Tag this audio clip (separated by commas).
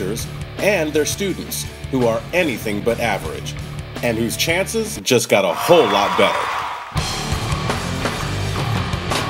Speech, Music